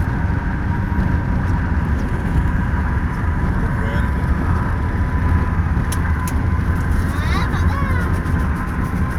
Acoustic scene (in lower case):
car